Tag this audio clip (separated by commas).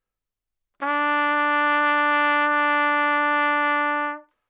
Musical instrument, Brass instrument, Music, Trumpet